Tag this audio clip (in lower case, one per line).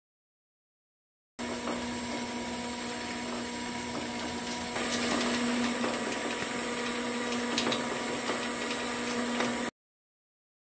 printer printing